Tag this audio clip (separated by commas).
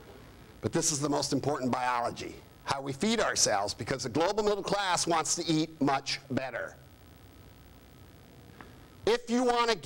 Male speech, Speech